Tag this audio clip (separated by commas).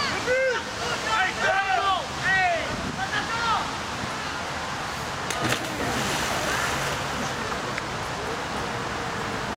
Waterfall, Speech